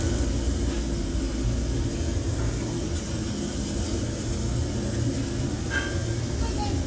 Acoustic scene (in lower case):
restaurant